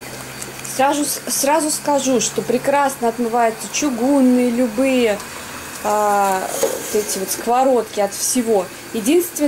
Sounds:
eating with cutlery

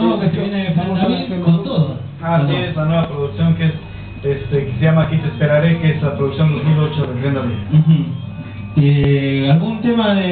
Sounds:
Radio, Music, Speech

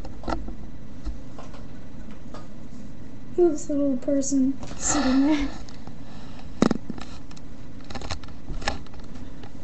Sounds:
Speech

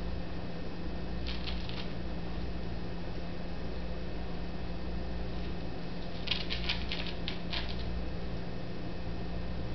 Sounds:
ferret dooking

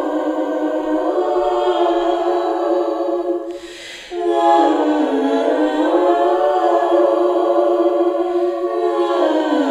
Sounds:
Choir, Female singing

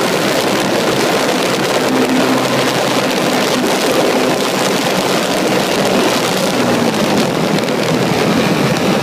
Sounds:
Engine

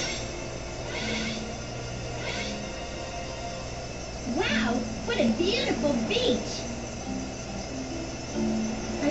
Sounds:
Music, Speech

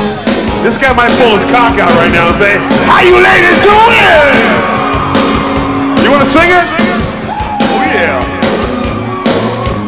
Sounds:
Music, Speech

